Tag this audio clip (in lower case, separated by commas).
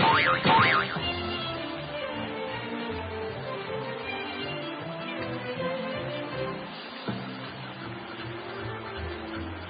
music